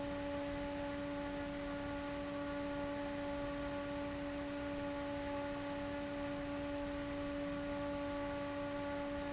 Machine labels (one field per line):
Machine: fan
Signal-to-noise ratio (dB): 6 dB